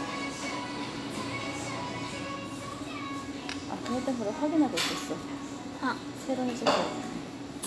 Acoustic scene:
cafe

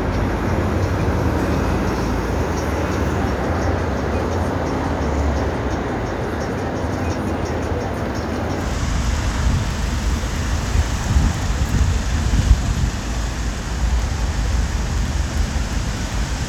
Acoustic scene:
street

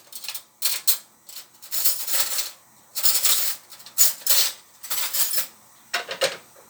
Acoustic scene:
kitchen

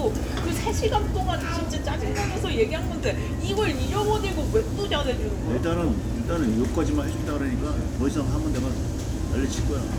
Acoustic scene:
crowded indoor space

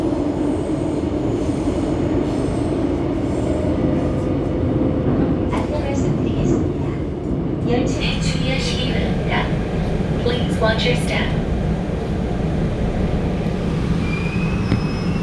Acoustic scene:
subway train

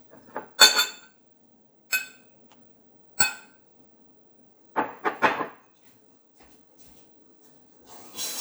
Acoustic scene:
kitchen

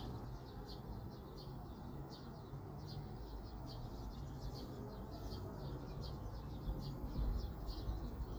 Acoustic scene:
park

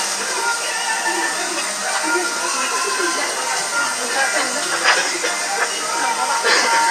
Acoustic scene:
restaurant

